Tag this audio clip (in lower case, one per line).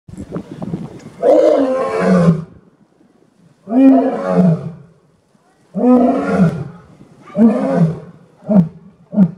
lions roaring